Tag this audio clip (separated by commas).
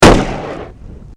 Explosion, gunfire